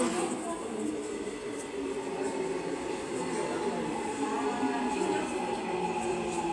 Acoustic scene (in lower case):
subway station